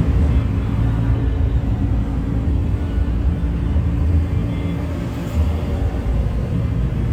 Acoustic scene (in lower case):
bus